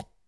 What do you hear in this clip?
plastic object falling